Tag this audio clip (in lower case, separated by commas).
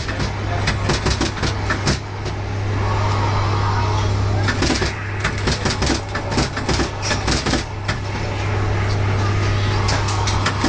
speech